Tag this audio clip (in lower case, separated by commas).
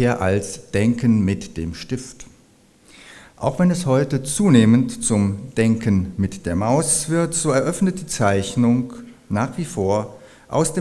speech